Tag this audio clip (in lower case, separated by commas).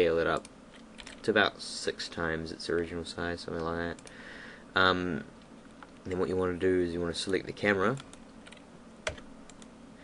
computer keyboard, speech